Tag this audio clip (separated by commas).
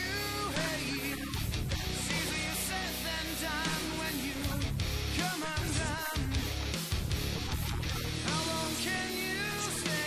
Speech, Music